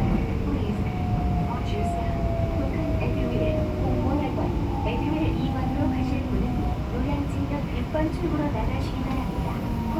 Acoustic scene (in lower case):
subway train